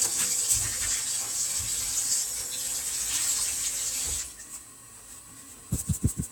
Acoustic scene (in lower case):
kitchen